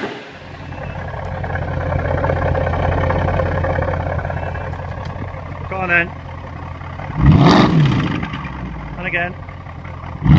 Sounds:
Speech

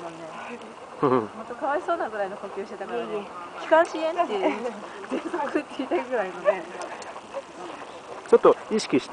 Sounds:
outside, urban or man-made, Speech, outside, rural or natural

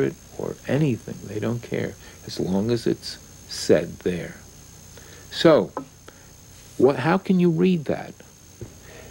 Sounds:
Speech

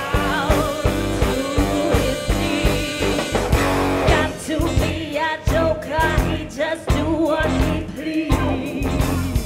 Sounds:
Music

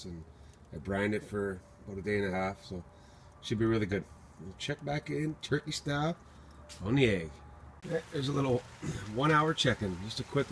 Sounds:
Speech

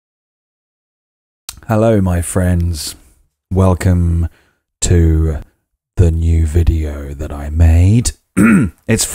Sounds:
Speech

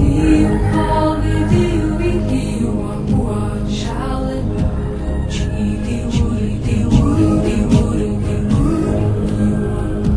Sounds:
Music

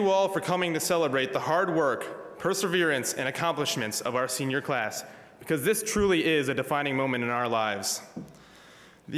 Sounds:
Male speech, monologue, Speech

